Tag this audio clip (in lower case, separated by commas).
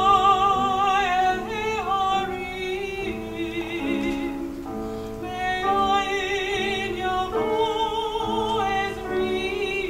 opera, music